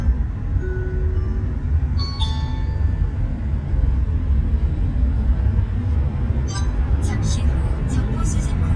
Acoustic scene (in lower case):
car